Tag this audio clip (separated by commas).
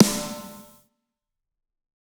Musical instrument, Music, Percussion, Drum, Snare drum